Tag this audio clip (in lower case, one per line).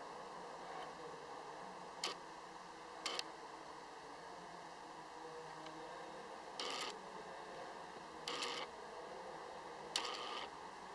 white noise